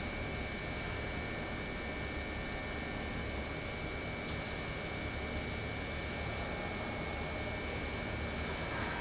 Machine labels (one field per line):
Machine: pump